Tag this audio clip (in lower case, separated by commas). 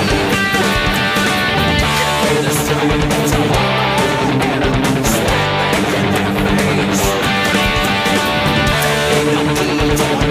playing bass guitar, music, strum, plucked string instrument, guitar, musical instrument, bass guitar